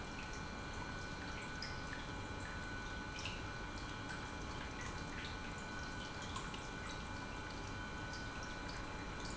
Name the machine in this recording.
pump